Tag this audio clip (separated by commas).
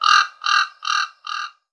Wild animals, Animal, Bird, Bird vocalization